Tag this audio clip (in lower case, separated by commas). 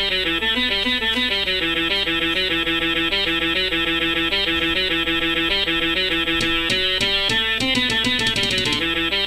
musical instrument, music, guitar, plucked string instrument